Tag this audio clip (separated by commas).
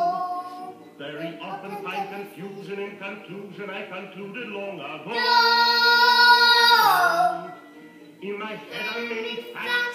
Male singing, Music, Child singing